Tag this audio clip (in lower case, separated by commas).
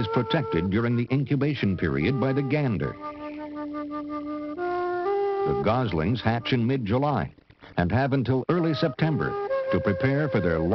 music, speech